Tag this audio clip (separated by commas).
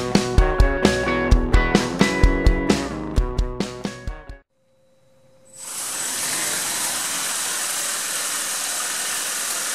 Music, inside a small room